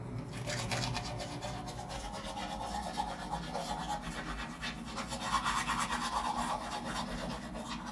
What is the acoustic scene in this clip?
restroom